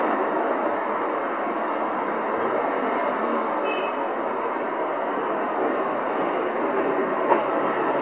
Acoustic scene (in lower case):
street